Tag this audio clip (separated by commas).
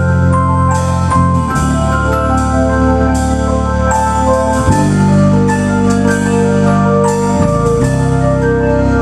Music